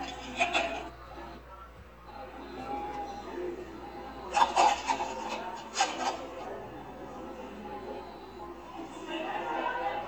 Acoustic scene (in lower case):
cafe